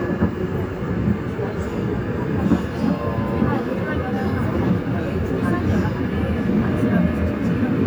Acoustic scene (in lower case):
subway train